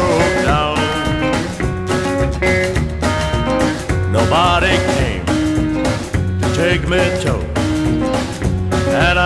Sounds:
Music

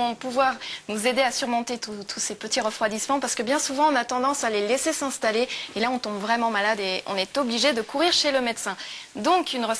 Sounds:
Speech

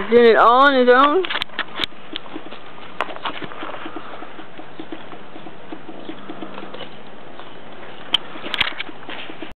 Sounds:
Speech, Clip-clop

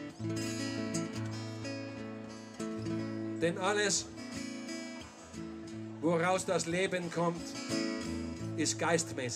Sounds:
Speech, Music

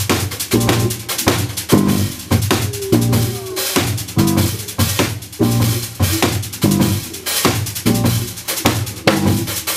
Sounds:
Musical instrument, Drum, Drum kit, Rimshot, Percussion, Music, Jazz

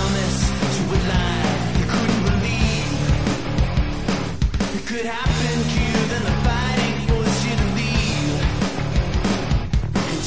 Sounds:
Music

